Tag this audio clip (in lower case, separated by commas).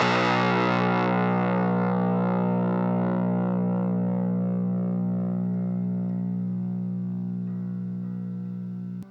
plucked string instrument, guitar, musical instrument, music